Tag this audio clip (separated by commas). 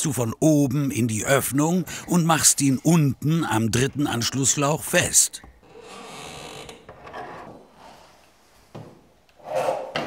Speech